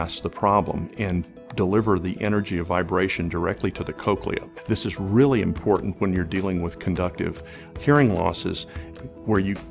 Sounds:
music, speech

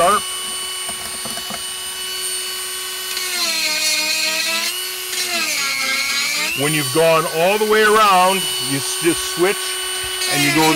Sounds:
speech, tools

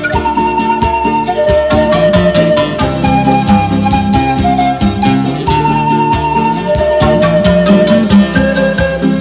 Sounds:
music

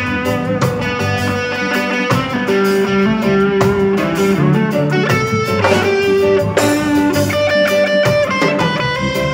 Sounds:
drum kit, music, bass drum, drum, musical instrument

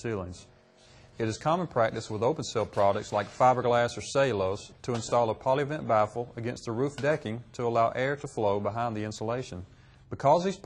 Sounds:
speech

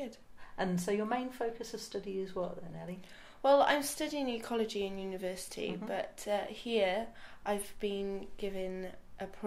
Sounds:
speech

